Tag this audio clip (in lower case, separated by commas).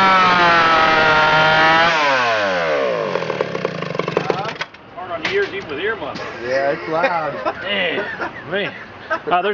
chainsaw